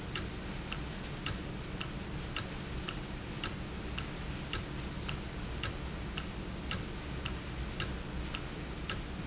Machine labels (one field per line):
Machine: valve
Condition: normal